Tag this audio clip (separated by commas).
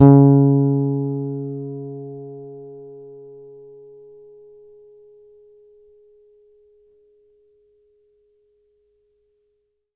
Musical instrument, Guitar, Plucked string instrument, Bass guitar, Music